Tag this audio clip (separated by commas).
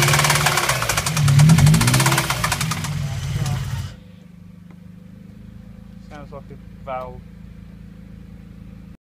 Car, Vehicle, Sound effect, Speech, revving